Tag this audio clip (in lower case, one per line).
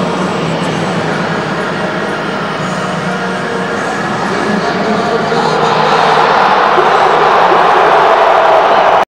speech
vehicle
truck